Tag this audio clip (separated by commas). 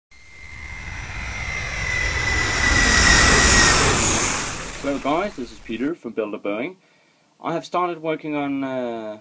Aircraft, Speech